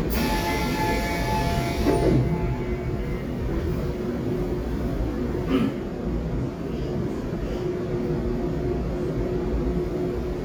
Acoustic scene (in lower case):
subway train